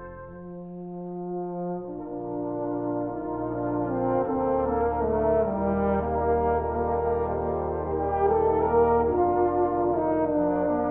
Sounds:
brass instrument, french horn, playing french horn, classical music, musical instrument, music

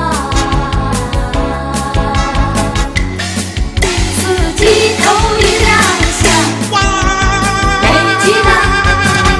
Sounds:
female singing, music

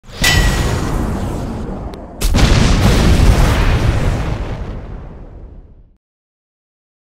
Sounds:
explosion

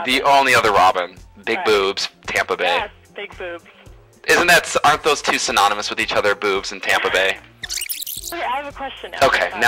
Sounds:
speech, music

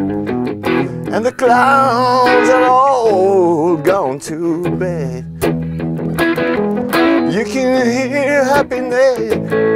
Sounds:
music

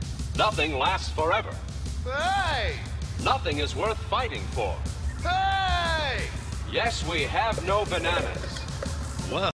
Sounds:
speech, music

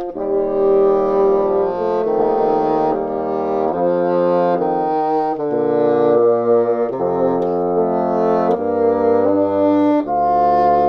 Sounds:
playing bassoon

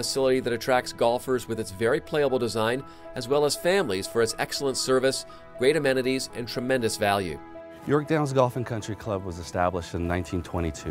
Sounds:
speech, music

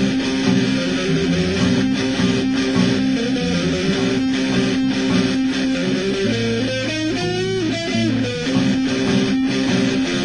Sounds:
strum, guitar, music, plucked string instrument, electric guitar, musical instrument

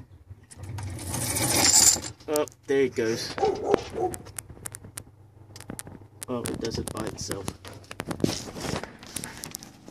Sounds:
pulleys, mechanisms

